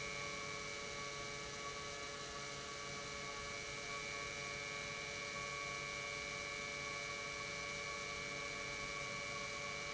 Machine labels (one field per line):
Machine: pump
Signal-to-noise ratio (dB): 6 dB